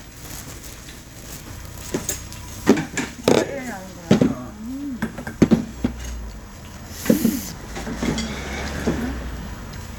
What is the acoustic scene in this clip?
restaurant